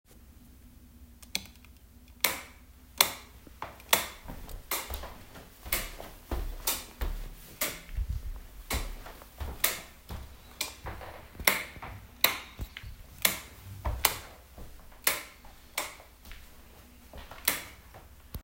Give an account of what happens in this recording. A child flips a light switch on and off while I walk around